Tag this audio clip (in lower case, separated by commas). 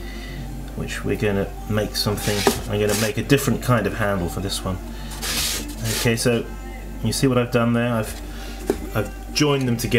speech, music